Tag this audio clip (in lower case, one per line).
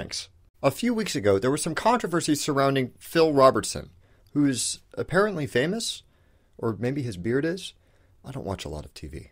speech
monologue